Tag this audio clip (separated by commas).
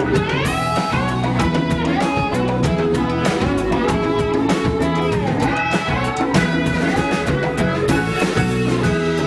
Music